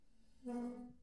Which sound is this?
metal furniture moving